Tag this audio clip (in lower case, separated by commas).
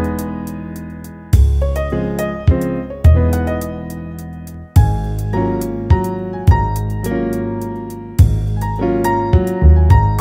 music